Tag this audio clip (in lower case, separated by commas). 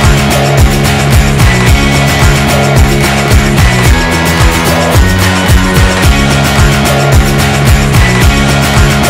music